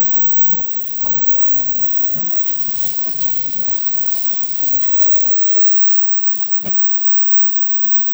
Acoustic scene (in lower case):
kitchen